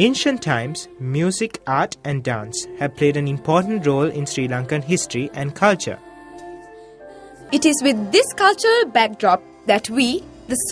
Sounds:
music
speech

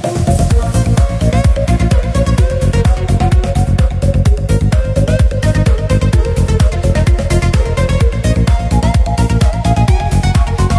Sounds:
music

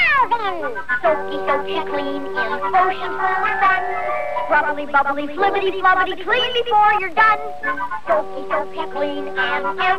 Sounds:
music

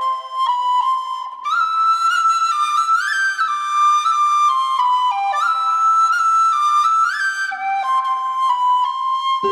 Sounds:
flute
music
outside, rural or natural
speech

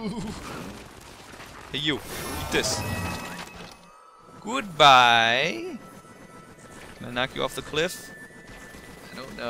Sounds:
music
speech

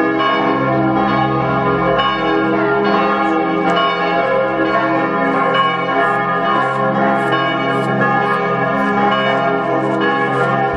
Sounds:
church bell ringing

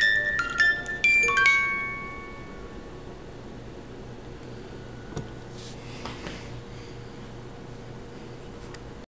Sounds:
music

